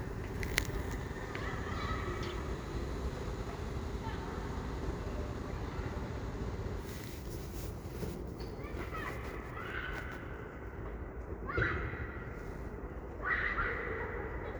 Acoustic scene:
residential area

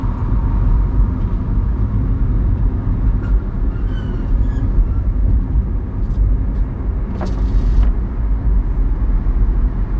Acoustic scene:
car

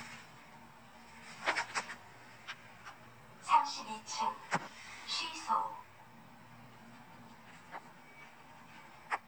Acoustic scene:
elevator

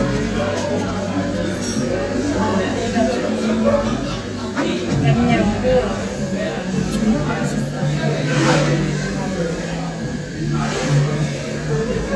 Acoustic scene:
crowded indoor space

